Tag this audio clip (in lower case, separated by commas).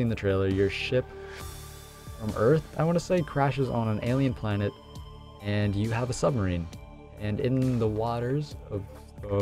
music, speech